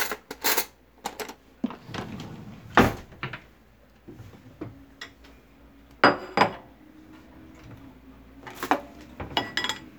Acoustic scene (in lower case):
kitchen